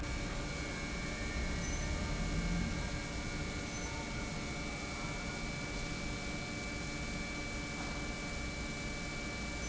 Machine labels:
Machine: pump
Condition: normal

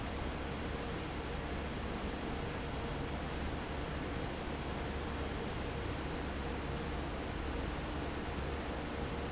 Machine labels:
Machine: fan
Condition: normal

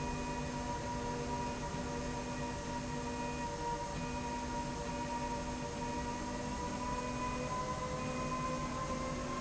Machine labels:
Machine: slide rail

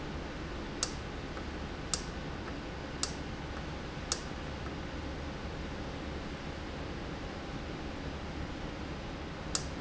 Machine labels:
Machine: valve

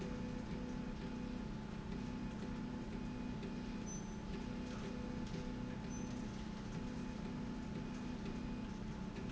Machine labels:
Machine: slide rail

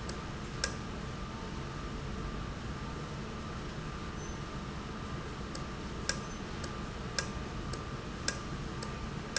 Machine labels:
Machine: valve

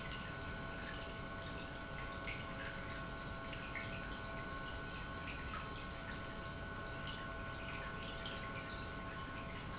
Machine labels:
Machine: pump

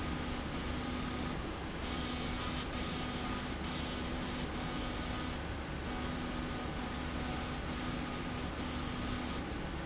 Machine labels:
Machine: slide rail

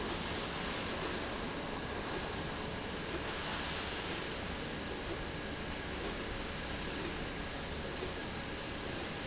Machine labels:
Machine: slide rail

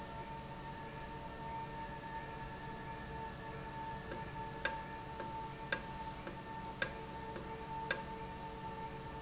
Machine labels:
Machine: valve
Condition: normal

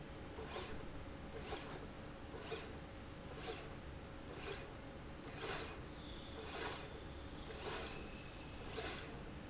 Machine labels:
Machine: slide rail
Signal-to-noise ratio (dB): 6 dB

